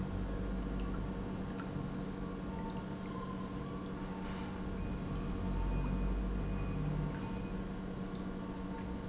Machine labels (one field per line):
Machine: pump